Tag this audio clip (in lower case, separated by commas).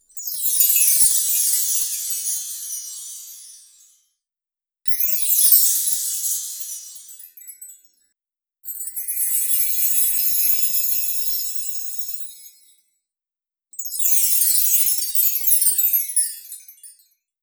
bell, chime